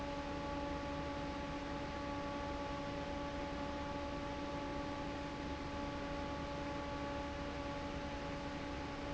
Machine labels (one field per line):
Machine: fan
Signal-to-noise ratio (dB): 0 dB